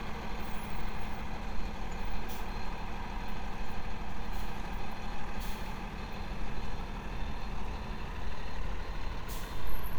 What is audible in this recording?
large-sounding engine